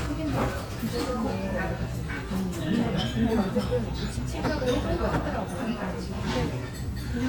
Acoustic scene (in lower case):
restaurant